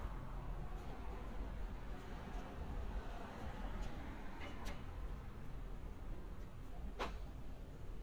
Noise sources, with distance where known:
background noise

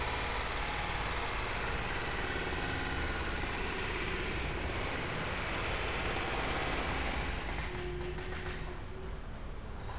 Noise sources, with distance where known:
unidentified impact machinery, near

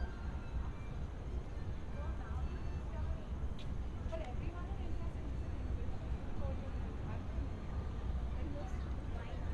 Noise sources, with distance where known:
music from a fixed source, far; person or small group talking, far

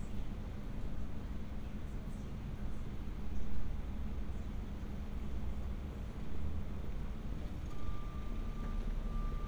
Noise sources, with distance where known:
background noise

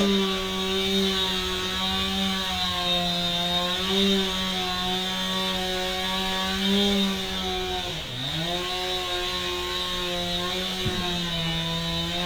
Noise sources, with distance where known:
unidentified powered saw, near

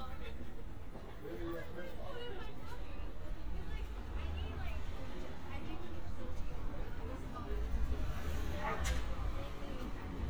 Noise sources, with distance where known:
person or small group talking, near

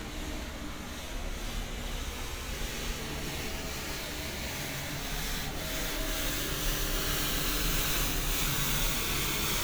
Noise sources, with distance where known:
engine of unclear size

